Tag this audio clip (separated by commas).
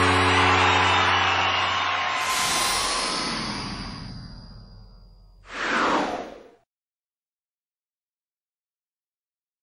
Music